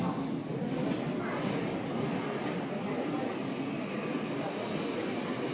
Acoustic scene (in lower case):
subway station